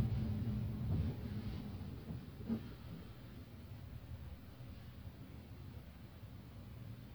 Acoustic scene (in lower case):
car